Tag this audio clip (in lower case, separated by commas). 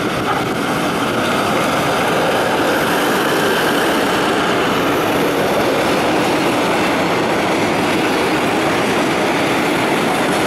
railroad car, rail transport, train